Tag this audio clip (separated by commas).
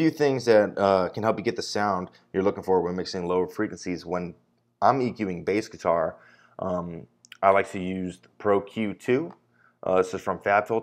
Speech